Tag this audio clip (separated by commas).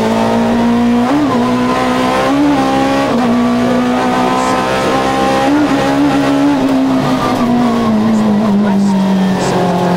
Speech